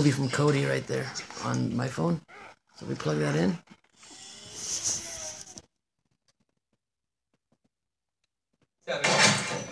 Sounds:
male speech
speech
television

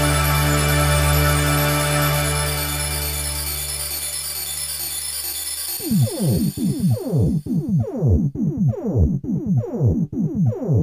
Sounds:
music

